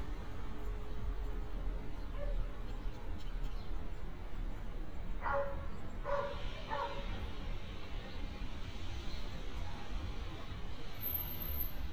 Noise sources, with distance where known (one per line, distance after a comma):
large-sounding engine, far